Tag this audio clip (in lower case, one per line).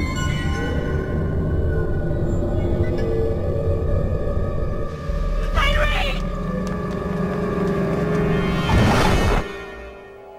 music
scary music